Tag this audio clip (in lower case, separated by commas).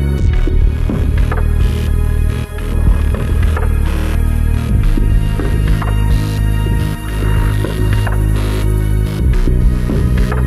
music